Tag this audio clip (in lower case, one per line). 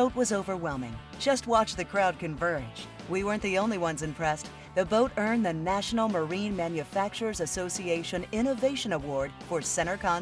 music
speech